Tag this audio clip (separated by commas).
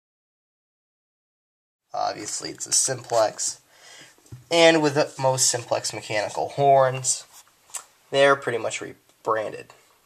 Speech